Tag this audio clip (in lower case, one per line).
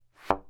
thud